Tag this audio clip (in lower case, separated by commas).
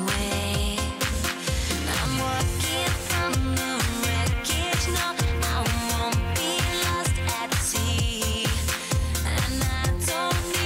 female singing, music